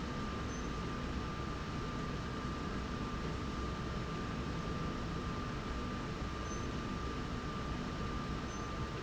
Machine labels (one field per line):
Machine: slide rail